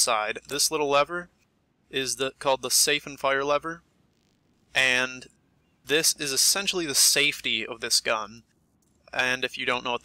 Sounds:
speech

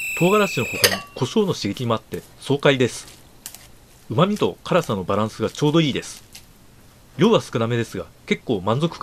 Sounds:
speech

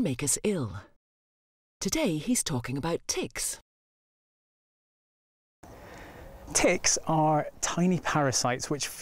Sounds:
speech

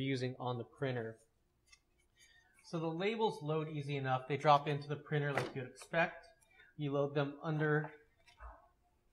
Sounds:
speech

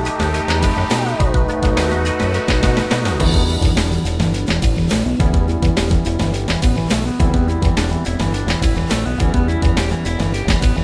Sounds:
theme music, music

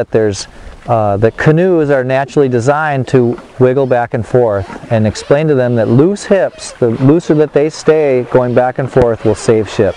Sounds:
boat, kayak, speech

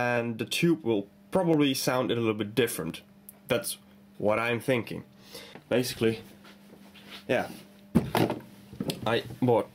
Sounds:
speech

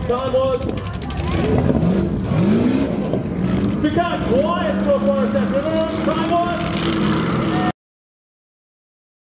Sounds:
race car, vehicle

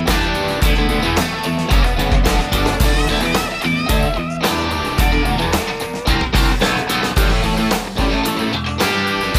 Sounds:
music

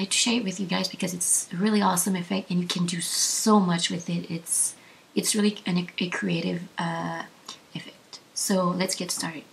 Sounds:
speech

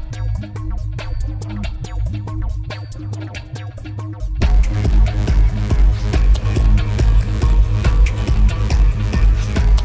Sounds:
electronica, dubstep, techno, soundtrack music, trance music, music, electronic music

